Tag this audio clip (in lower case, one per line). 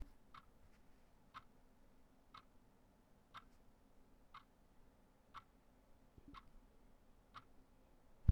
clock
tick-tock
mechanisms